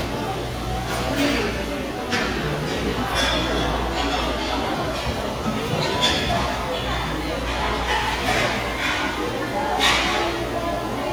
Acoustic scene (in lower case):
restaurant